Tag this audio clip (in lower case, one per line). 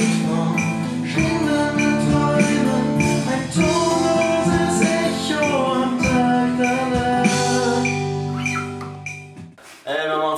music
speech